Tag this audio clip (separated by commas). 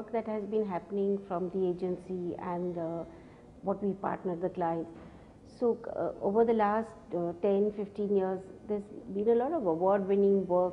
Speech